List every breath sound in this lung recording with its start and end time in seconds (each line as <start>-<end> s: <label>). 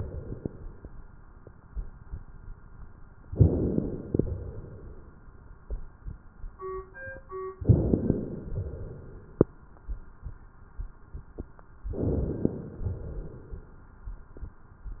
3.25-4.14 s: inhalation
3.25-4.14 s: crackles
4.16-5.18 s: exhalation
7.59-8.48 s: inhalation
7.59-8.48 s: crackles
8.48-9.51 s: exhalation
11.99-12.88 s: inhalation
11.99-12.88 s: crackles
12.88-13.91 s: exhalation